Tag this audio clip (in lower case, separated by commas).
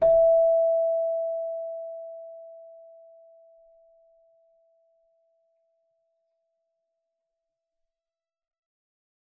musical instrument, music, keyboard (musical)